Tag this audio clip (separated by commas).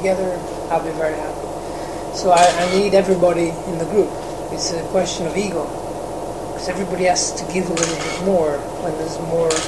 inside a small room, Speech